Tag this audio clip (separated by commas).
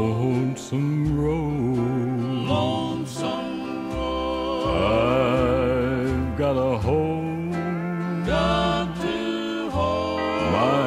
Music